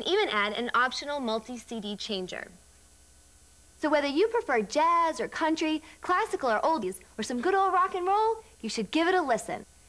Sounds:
Speech

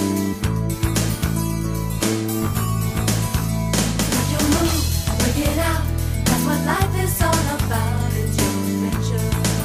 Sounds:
Soundtrack music, Music

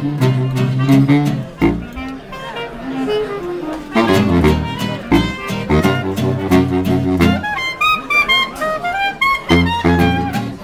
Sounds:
Music, Speech

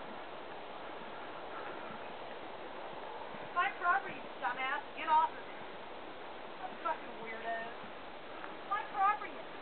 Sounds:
Speech

